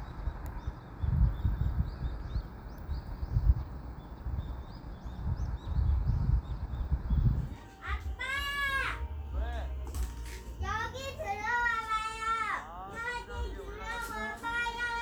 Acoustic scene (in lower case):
park